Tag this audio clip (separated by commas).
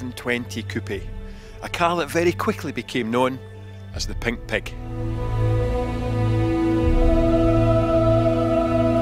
Speech, Music